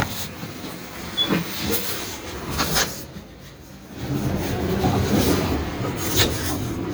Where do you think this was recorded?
on a bus